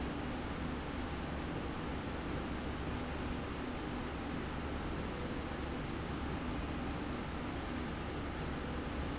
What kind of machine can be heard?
slide rail